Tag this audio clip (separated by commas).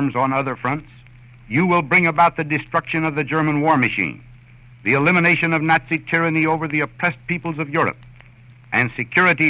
man speaking, monologue, Speech synthesizer, Speech